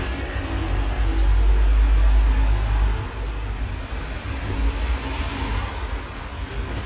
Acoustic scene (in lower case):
street